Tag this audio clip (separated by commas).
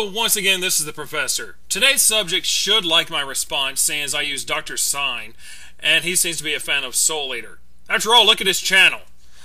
Speech